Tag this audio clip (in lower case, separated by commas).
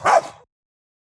domestic animals, bark, animal, dog